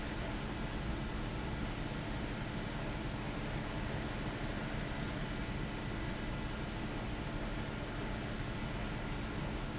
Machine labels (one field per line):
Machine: fan